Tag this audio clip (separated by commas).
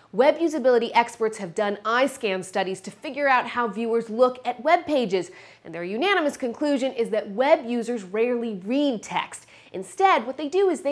Speech